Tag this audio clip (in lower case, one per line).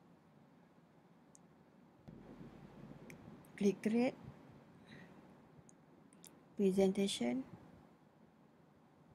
speech